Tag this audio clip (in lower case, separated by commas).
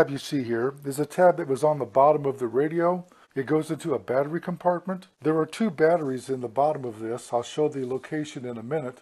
speech